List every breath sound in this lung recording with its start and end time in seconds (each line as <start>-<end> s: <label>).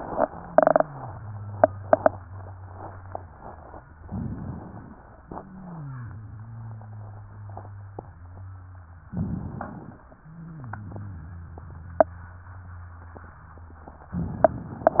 0.26-3.95 s: wheeze
4.03-5.04 s: inhalation
5.26-9.11 s: wheeze
9.11-10.12 s: inhalation
10.16-14.09 s: wheeze
14.13-15.00 s: inhalation